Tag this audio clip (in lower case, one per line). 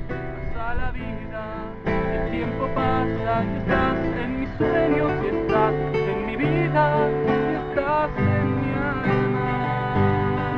plucked string instrument
acoustic guitar
guitar
musical instrument
music